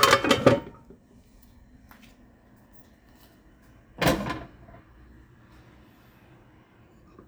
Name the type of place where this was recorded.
kitchen